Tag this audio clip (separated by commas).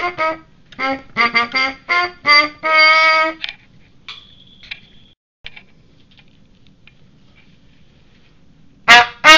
Brass instrument, Trumpet